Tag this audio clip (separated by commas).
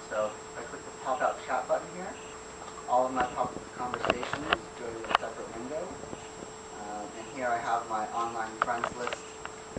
Speech, inside a small room